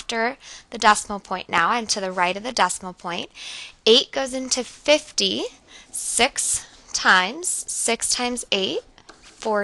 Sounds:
speech

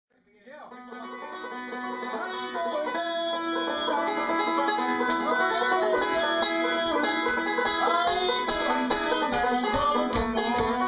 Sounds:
plucked string instrument, banjo, musical instrument, music, country

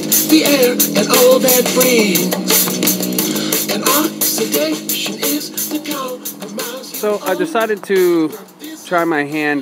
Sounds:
music, speech

